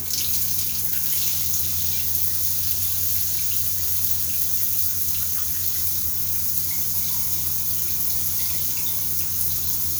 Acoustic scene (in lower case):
restroom